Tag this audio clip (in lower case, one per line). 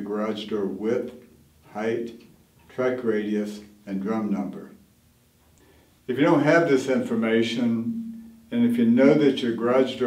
speech